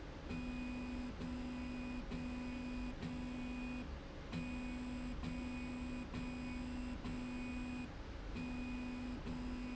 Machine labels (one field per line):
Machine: slide rail